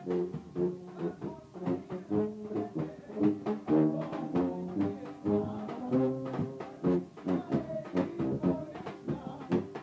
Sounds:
brass instrument, music

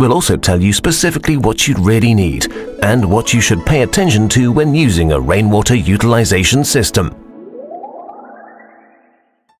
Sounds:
music, speech

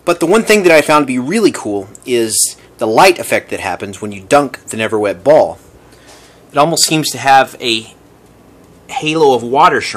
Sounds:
speech

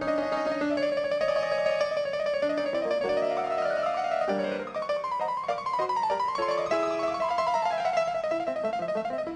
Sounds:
music

